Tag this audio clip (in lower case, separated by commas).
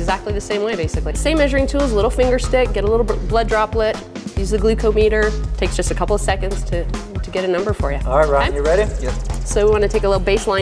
music, speech